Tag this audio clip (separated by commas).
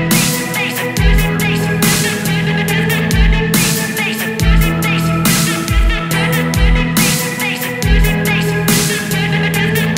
Electronic music, Dubstep, Music